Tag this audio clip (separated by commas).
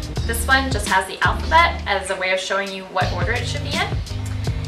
Music, Speech